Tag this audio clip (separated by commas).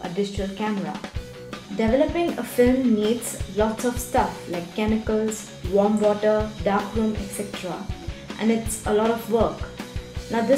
Speech, Music